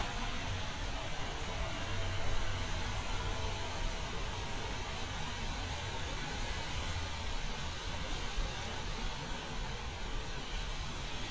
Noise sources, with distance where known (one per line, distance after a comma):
engine of unclear size